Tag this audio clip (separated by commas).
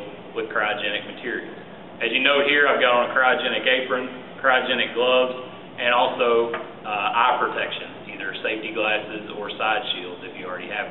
Speech